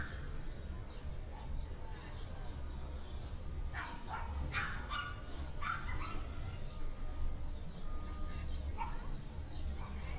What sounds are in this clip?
background noise